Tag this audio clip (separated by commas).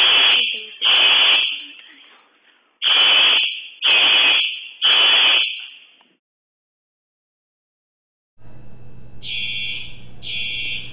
Buzzer